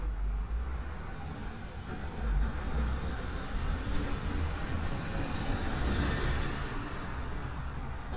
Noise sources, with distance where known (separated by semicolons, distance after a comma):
engine of unclear size